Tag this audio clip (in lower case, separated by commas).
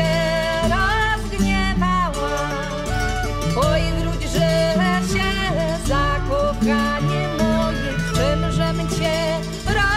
music